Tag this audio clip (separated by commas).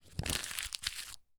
crinkling